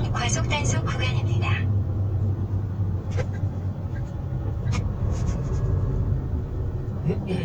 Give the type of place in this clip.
car